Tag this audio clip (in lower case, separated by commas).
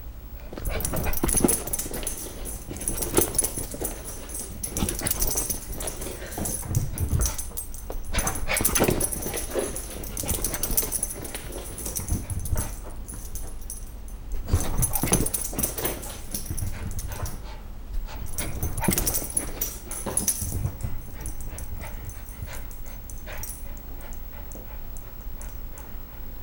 animal, domestic animals, dog